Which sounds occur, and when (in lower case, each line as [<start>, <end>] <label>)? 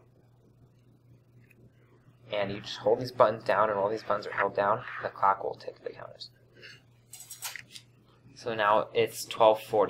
[0.00, 9.85] mechanisms
[1.35, 1.52] generic impact sounds
[2.27, 6.27] male speech
[6.53, 6.82] generic impact sounds
[7.07, 7.89] generic impact sounds
[8.34, 9.85] male speech